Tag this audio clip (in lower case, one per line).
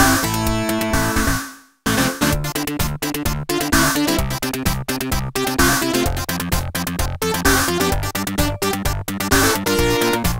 theme music
music
rhythm and blues